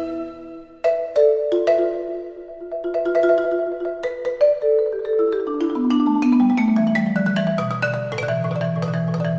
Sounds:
xylophone, Music

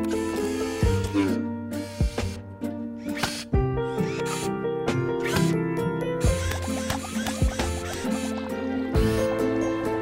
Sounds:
Music

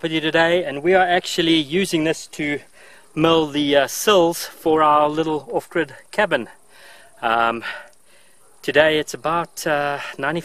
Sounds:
Speech

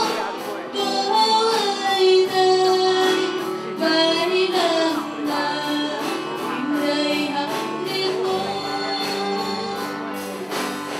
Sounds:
Vocal music

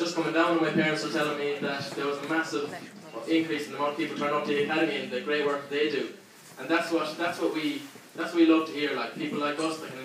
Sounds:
Speech, man speaking

